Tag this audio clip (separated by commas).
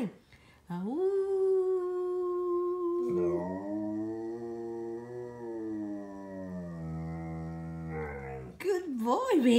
dog howling